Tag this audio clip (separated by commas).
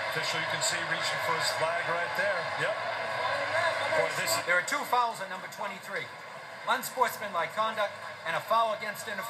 Speech